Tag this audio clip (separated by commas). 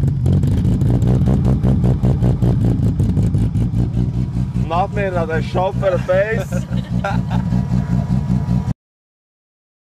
Speech